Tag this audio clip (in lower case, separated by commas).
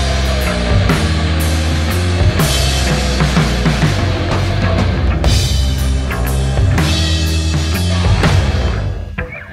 music